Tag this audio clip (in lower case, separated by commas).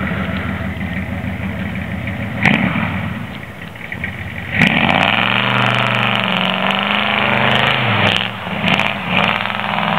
car, vehicle